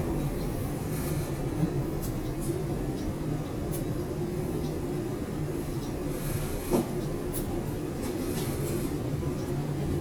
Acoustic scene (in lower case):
subway station